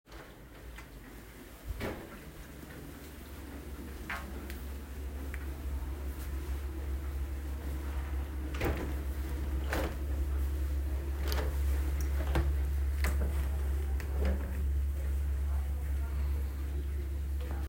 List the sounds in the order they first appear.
window